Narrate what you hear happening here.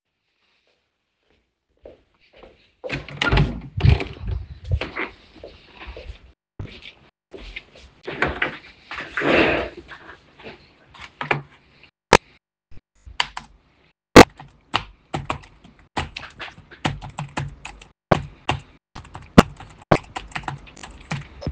I walked to the bedroom, opened the door, walked up to the desk, placed the laptop on the desk, moved the chair, sat in it, placed the phone on the desk, started typing on the laptop keyboard.